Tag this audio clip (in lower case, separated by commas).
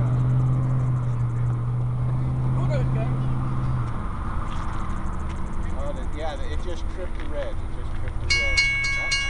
speech